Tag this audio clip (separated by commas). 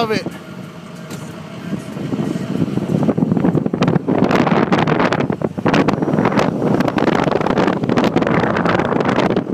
Car, Speech, Vehicle